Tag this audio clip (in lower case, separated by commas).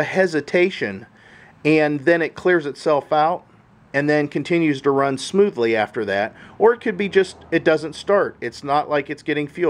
speech